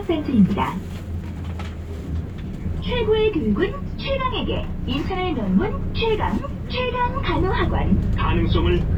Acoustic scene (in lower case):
bus